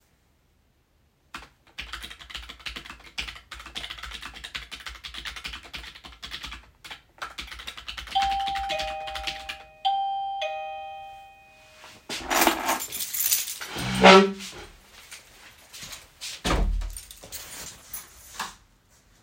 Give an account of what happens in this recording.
While I was typing on the keyboard at my desk the doorbell rang. I stopped typing - grabbed my keys from the desk and went out - and closed the door behind me.